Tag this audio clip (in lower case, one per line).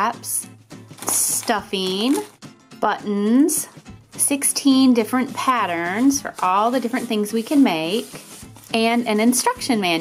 music
speech